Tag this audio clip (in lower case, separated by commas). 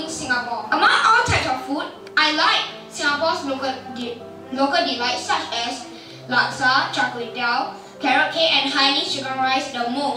child speech, music, narration, speech